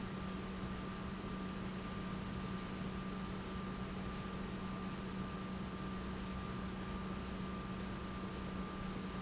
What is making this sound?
pump